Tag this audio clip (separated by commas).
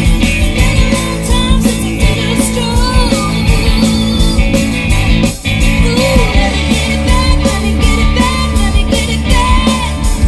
Music, Rock and roll